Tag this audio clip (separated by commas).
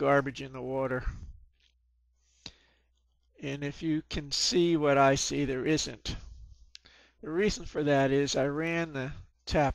Speech